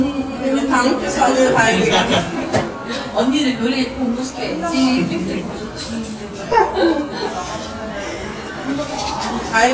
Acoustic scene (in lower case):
cafe